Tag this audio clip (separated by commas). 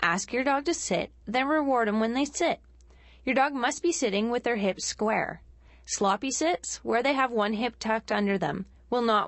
Speech